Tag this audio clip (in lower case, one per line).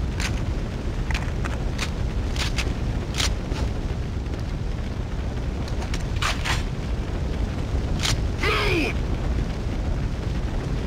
inside a large room or hall
speech